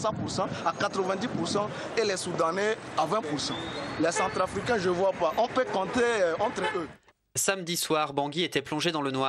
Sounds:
speech

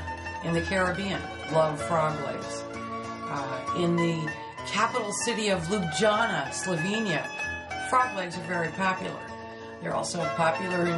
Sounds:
speech, music

